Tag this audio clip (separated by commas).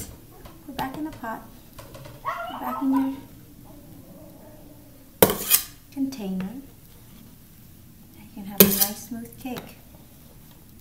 Speech, inside a small room